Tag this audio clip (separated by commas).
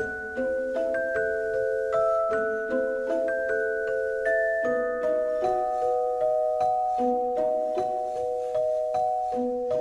Glockenspiel, inside a public space, Music